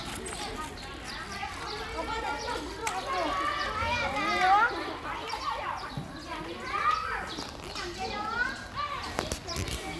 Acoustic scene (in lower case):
park